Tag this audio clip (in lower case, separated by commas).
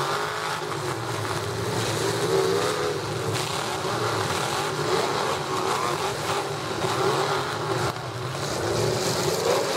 vehicle, auto racing, truck, outside, rural or natural